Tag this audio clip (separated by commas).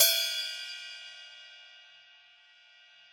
Cymbal, Percussion, Musical instrument, Hi-hat, Music